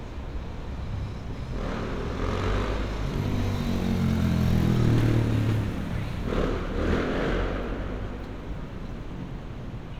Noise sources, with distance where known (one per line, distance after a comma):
small-sounding engine, near
medium-sounding engine, near